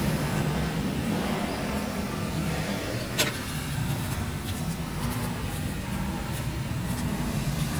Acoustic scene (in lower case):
residential area